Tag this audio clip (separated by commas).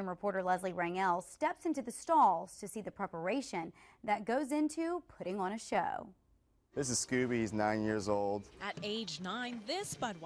Speech